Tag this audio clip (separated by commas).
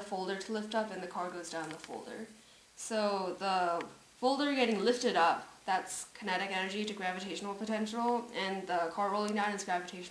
Speech